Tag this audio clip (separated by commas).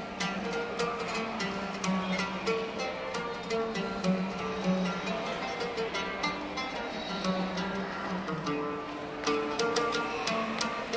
Music, Middle Eastern music